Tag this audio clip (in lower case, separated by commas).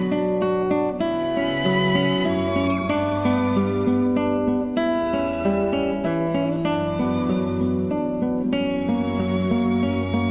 acoustic guitar, musical instrument, plucked string instrument, playing acoustic guitar, music, guitar, strum